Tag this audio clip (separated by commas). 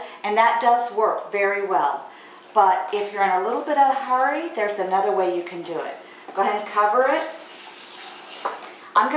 Speech, inside a small room